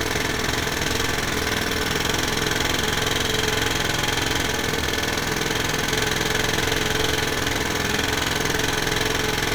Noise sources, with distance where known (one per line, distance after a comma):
unidentified impact machinery, near